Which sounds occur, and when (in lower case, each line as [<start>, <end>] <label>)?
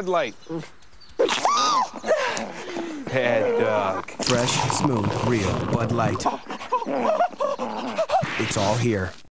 [0.00, 0.28] male speech
[0.00, 0.49] chirp
[0.00, 9.30] wind
[0.45, 0.60] dog
[0.53, 0.67] surface contact
[0.90, 1.04] chirp
[1.32, 1.84] screaming
[1.86, 2.07] dog
[1.95, 2.15] chirp
[1.99, 2.15] human voice
[2.11, 2.44] screaming
[2.25, 2.49] dog
[2.44, 2.63] surface contact
[2.59, 3.12] screaming
[3.00, 3.98] human voice
[3.03, 3.96] male speech
[4.10, 6.20] gurgling
[4.11, 6.21] pour
[4.15, 4.85] male speech
[4.20, 4.78] sound effect
[5.20, 5.47] male speech
[5.22, 5.63] sound effect
[5.30, 5.56] surface contact
[5.72, 6.24] male speech
[6.17, 6.37] human voice
[6.31, 8.04] chirp
[6.40, 6.63] breathing
[6.64, 6.82] human voice
[6.78, 7.05] growling
[7.05, 7.23] human voice
[7.39, 7.52] human voice
[7.48, 8.01] growling
[7.61, 7.90] breathing
[7.95, 8.22] human voice
[8.15, 8.83] sound effect
[8.37, 9.08] male speech
[8.46, 9.23] gurgling